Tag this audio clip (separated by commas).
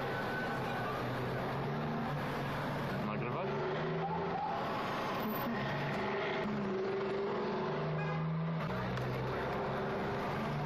Car passing by